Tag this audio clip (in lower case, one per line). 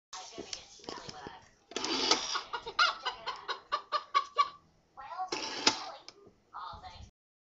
speech